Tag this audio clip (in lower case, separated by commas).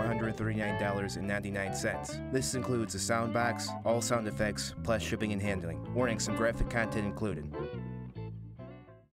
music, speech